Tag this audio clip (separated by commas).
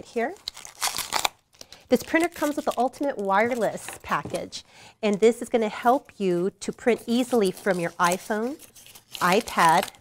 Speech